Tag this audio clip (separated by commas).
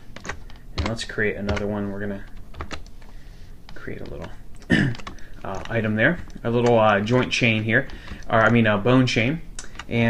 Speech